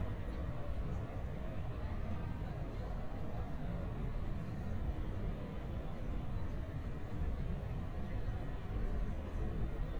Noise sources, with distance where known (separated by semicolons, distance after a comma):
person or small group talking, far